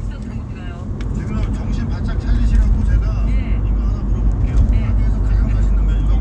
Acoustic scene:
car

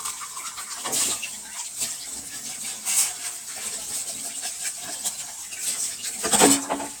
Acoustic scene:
kitchen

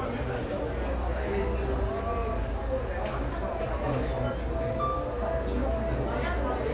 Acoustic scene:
cafe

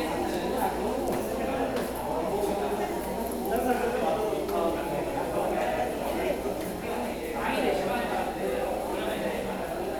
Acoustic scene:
subway station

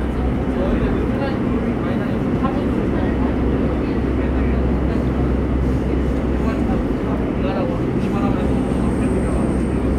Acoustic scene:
subway train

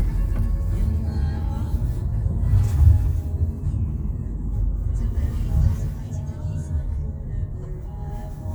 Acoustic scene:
car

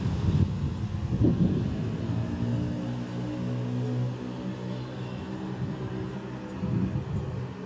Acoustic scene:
residential area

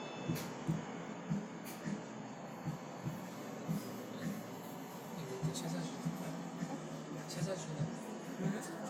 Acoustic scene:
cafe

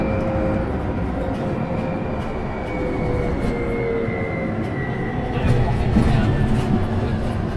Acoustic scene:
bus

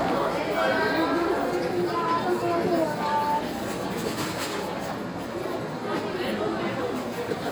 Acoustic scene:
crowded indoor space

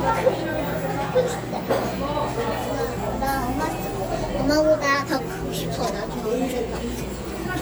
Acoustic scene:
cafe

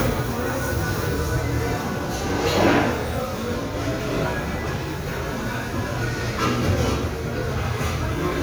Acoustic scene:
restaurant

